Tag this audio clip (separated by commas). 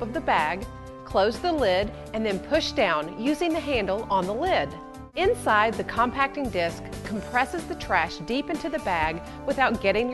Music, Speech